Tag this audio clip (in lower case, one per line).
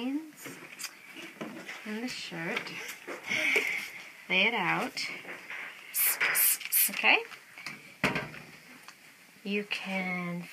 speech